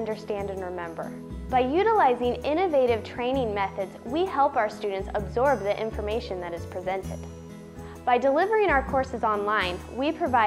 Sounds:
Music, Speech

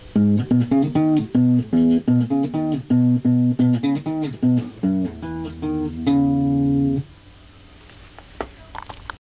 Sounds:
Electric guitar, Music, Musical instrument, Guitar, Plucked string instrument

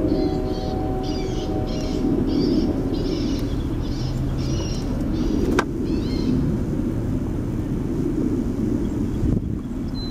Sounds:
outside, rural or natural

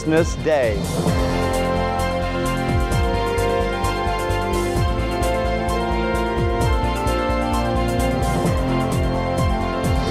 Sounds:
Music, Speech

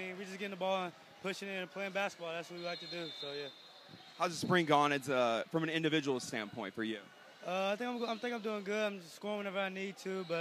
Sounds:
Speech

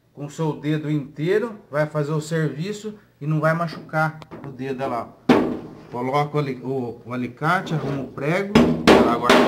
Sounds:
hammering nails

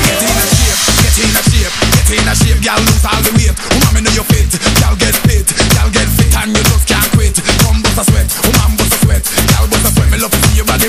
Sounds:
Music

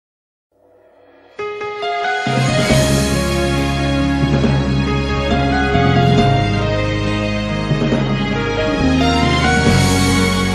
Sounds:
Theme music, Music

